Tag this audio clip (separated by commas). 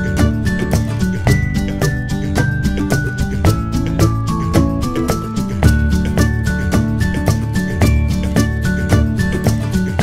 Music